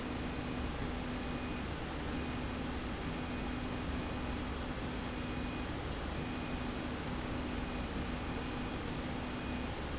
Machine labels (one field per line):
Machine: slide rail